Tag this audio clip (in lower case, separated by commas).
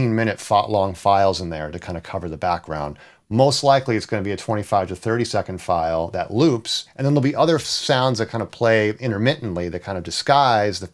speech